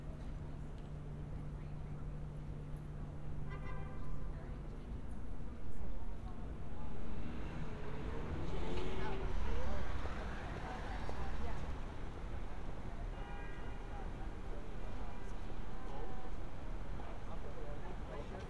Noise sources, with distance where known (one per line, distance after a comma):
engine of unclear size
car horn, far
person or small group talking